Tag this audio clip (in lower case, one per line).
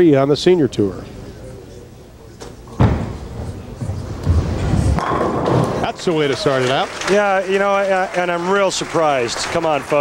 slam
speech